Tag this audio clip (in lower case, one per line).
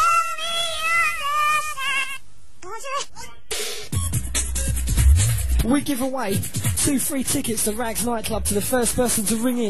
speech
music